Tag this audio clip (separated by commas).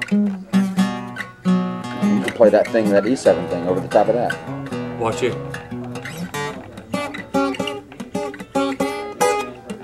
Speech, Acoustic guitar, Music, Guitar, Plucked string instrument, Musical instrument